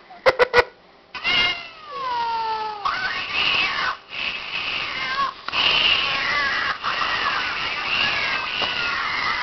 A person laughs and a cat is meowing in distress